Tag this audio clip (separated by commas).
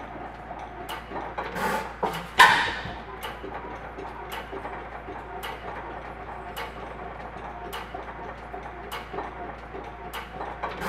Engine, Idling